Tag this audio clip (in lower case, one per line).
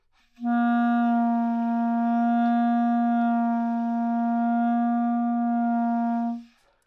musical instrument
music
wind instrument